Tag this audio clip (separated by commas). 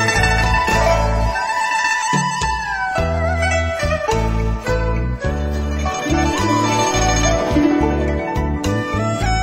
playing erhu